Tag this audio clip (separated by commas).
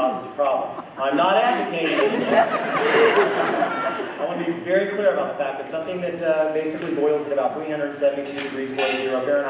Speech